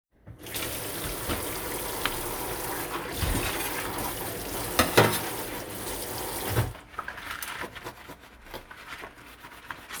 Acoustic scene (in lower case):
kitchen